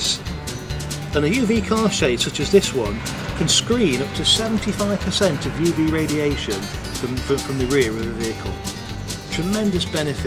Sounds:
speech, music

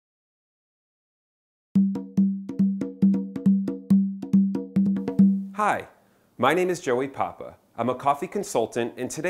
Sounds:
speech, music

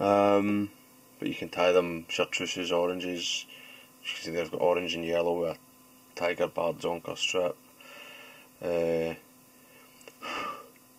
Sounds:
speech

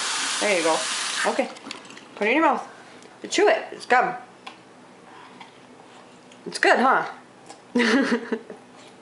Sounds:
speech, inside a small room

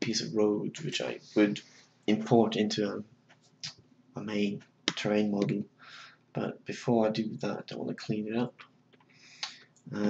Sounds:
speech

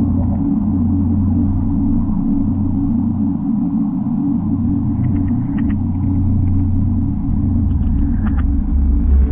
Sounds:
scary music

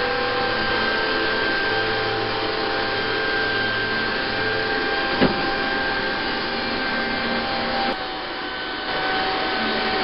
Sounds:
vacuum cleaner

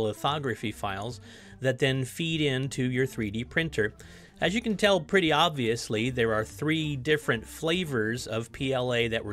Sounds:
speech

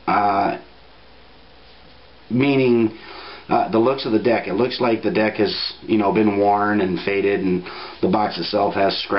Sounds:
speech

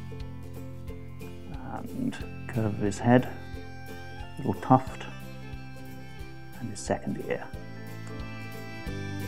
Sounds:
speech, music

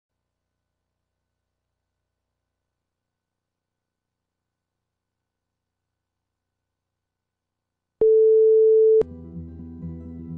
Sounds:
music

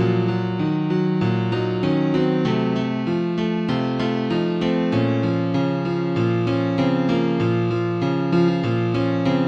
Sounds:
jingle (music), music

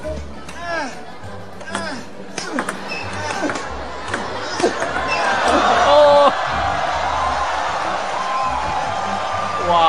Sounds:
playing table tennis

